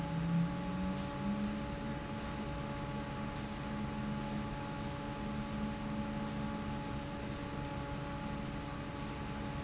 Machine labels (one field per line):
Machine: fan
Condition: normal